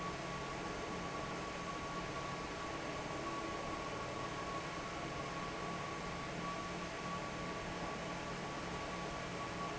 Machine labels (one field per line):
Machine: fan